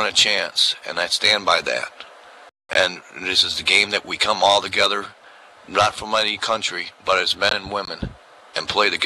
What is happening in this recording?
A man speaking